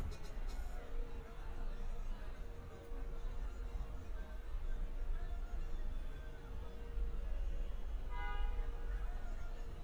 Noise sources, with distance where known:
car horn; music from an unclear source

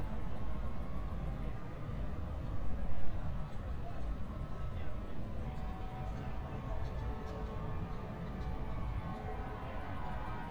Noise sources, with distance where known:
unidentified alert signal, far

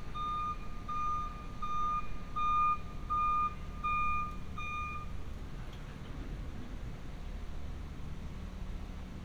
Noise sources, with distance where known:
reverse beeper, near

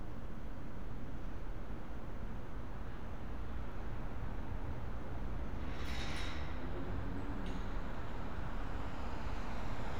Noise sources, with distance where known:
medium-sounding engine

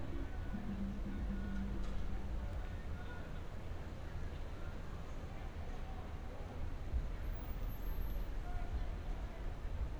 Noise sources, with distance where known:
music from an unclear source, far; person or small group talking, far

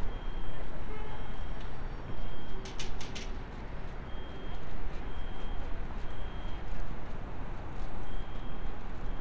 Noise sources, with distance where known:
car horn, far; reverse beeper, far

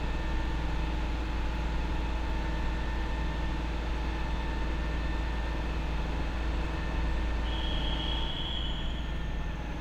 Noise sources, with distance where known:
rock drill

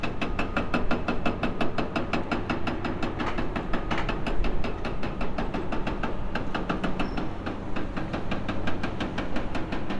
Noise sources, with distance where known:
hoe ram

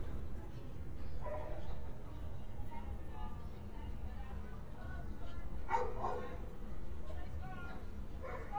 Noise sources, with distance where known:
person or small group shouting, near; dog barking or whining

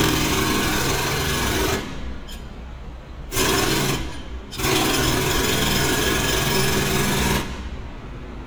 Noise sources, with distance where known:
jackhammer

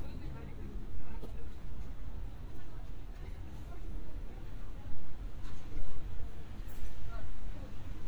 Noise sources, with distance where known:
person or small group talking, far

